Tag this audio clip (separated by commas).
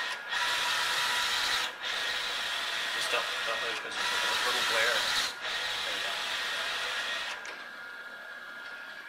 Printer, inside a small room, Speech